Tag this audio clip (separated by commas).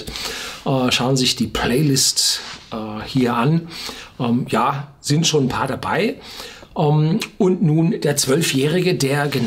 Speech